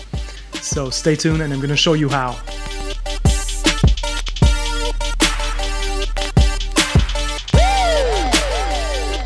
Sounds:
speech, music

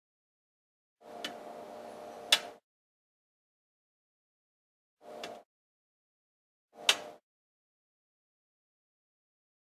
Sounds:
speech, inside a small room, glass

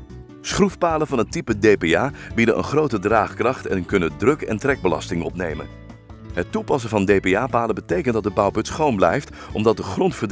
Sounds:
speech, music

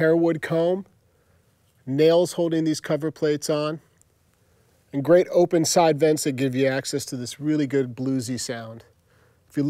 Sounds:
speech

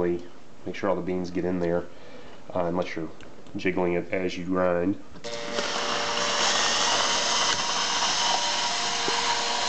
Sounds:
blender

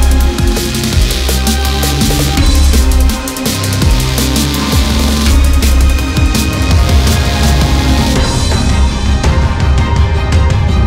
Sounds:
music, drum and bass

